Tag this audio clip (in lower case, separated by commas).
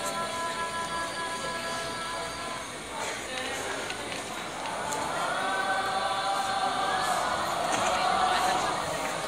singing choir, choir